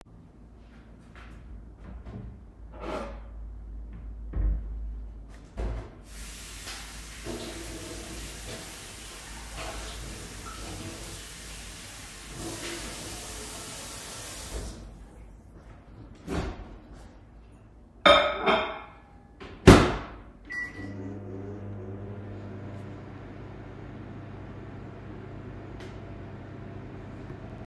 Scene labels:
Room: kitchen; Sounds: footsteps, wardrobe or drawer (more than once), cutlery and dishes, running water, microwave

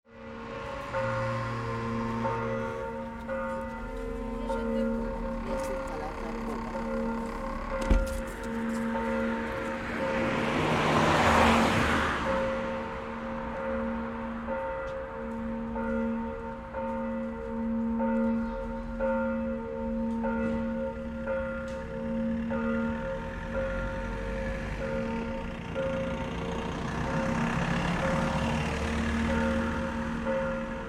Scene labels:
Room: living room; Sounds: bell ringing, footsteps

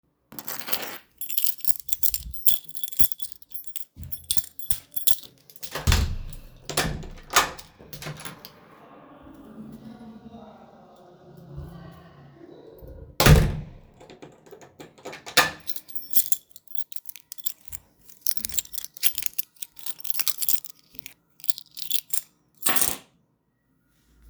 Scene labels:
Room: living room; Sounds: keys, door (more than once)

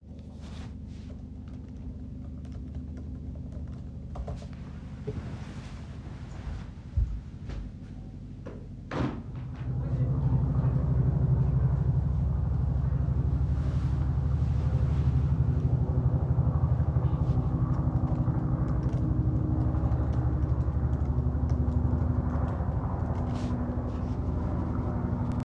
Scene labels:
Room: living room; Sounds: keyboard typing, footsteps, window

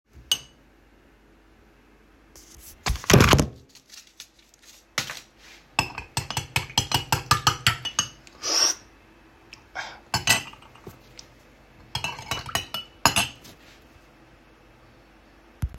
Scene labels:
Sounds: cutlery and dishes

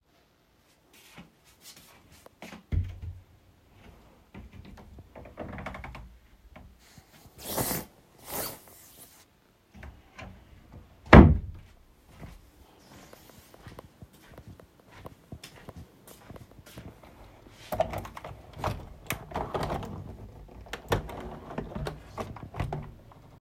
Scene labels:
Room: bedroom; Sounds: footsteps, wardrobe or drawer (more than once), window

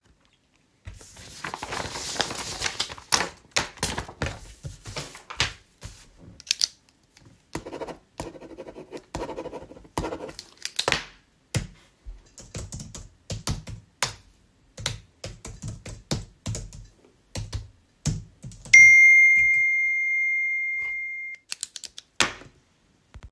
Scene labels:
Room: office; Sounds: keyboard typing, phone ringing

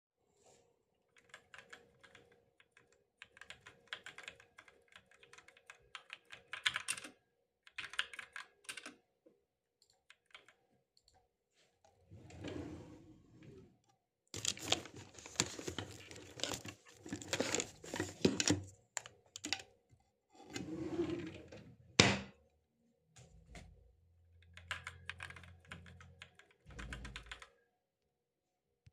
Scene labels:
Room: office; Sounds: keyboard typing, wardrobe or drawer (more than once)

